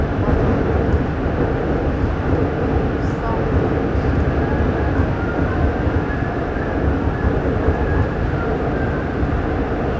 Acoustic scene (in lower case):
subway train